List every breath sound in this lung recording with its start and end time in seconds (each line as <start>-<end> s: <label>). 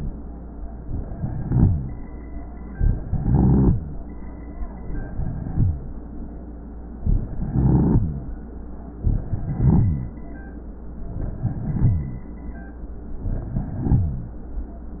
0.82-1.99 s: inhalation
1.18-1.99 s: rhonchi
2.73-3.81 s: inhalation
3.00-3.81 s: rhonchi
4.84-5.98 s: inhalation
5.05-5.86 s: rhonchi
7.06-8.37 s: inhalation
7.53-8.35 s: rhonchi
9.03-10.21 s: inhalation
9.30-10.21 s: rhonchi
11.10-12.28 s: inhalation
11.42-12.30 s: rhonchi
13.22-14.36 s: inhalation
13.49-14.36 s: rhonchi